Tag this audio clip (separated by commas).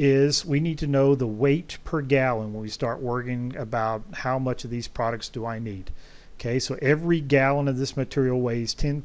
Speech